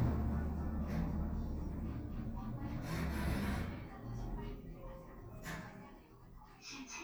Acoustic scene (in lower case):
elevator